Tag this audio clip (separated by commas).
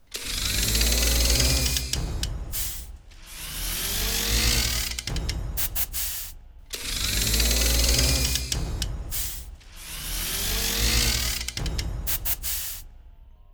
Mechanisms, Engine